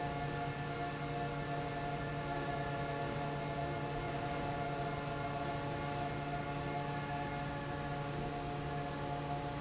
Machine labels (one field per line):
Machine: fan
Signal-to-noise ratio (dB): -6 dB